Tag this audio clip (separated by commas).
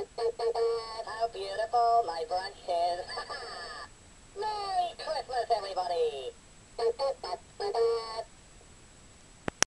Synthetic singing